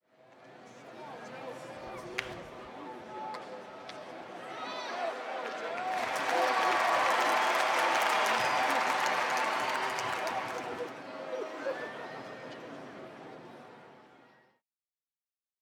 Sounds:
crowd, applause, cheering, human group actions

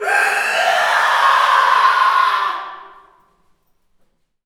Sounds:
human voice, screaming

